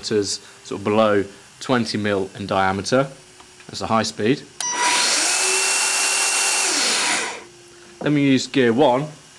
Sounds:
Tools, Drill, Speech

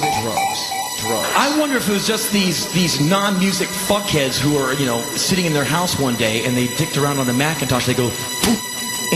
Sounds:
Speech, Music

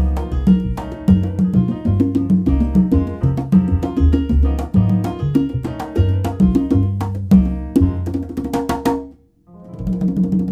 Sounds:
Drum, Percussion, Wood block, Music of Latin America, Salsa music, Musical instrument, Music

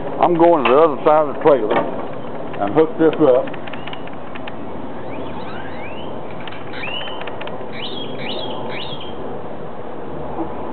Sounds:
Speech

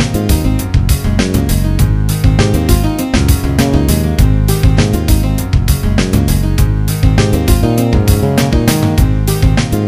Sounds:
Video game music, Music

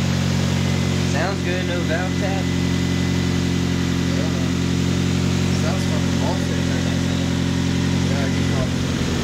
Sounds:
car engine starting

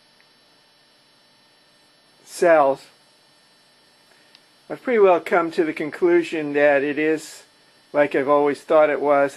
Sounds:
Speech

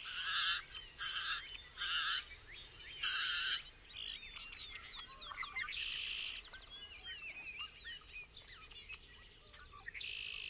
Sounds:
bird squawking

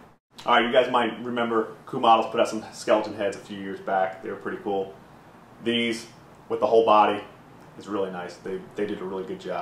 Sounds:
Speech

